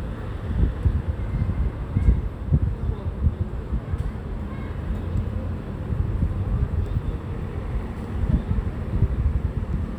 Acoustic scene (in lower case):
residential area